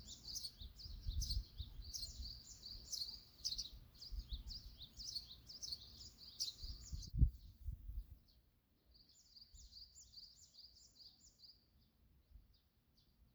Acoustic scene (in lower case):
park